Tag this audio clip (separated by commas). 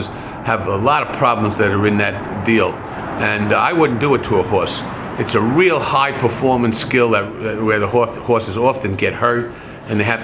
Speech